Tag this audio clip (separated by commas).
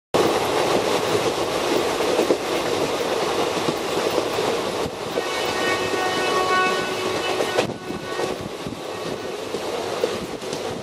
Railroad car, Vehicle, Rail transport, outside, rural or natural, Train